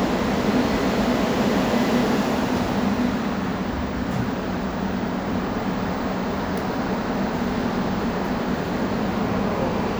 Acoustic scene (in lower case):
subway station